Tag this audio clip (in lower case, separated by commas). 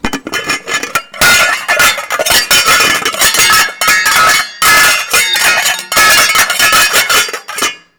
domestic sounds, dishes, pots and pans